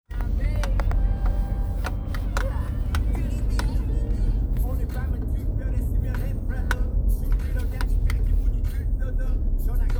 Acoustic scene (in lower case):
car